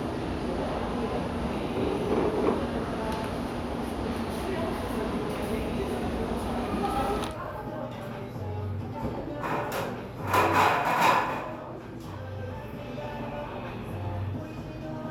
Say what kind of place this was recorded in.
cafe